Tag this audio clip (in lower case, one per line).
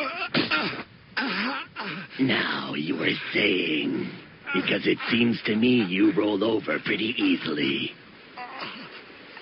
speech